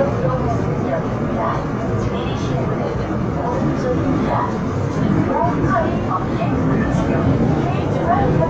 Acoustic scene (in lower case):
subway train